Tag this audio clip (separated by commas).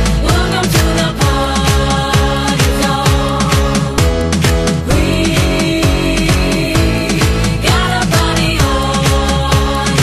House music, Music, Electronic dance music, Electronic music